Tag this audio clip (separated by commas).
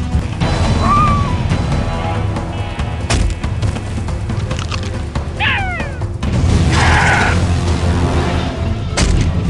dinosaurs bellowing